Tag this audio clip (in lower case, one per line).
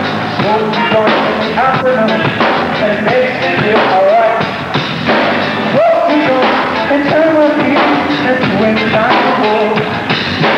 music